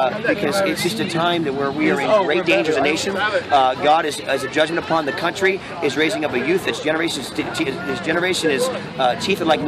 A person speaks as others talk in the background